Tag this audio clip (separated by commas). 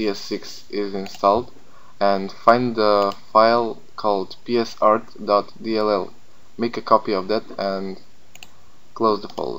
Speech